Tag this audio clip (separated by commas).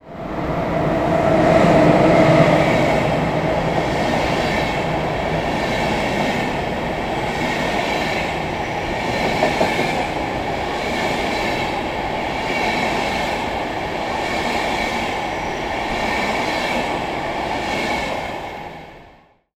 Rail transport, Train, Vehicle